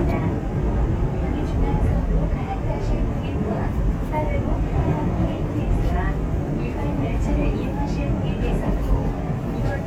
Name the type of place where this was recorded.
subway train